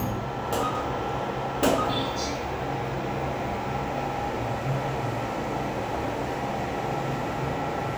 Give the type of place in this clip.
elevator